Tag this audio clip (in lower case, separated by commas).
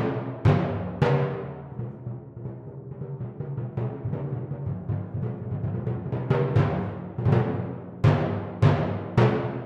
music, timpani